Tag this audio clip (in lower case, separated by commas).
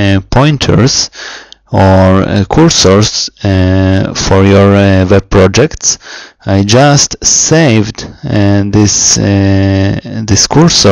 speech